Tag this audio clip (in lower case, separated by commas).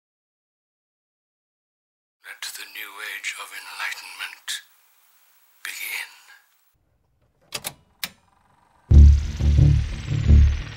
speech, music